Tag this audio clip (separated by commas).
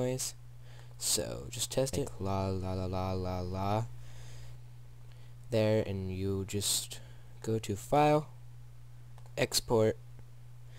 Speech